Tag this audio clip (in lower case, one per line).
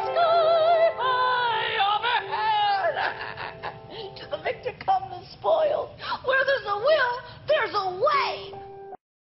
speech
singing
music